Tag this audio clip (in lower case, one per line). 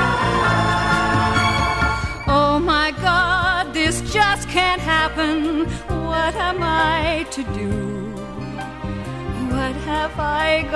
music